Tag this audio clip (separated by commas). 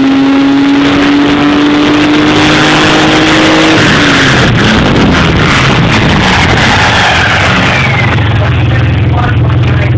Speech